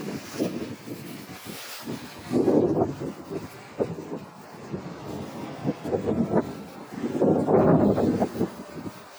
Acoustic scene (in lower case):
residential area